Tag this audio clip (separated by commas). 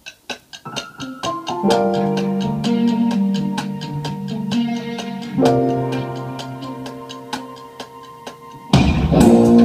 Music, inside a small room, Musical instrument, Keyboard (musical)